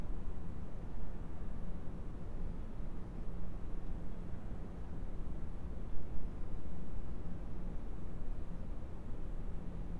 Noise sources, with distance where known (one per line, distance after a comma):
background noise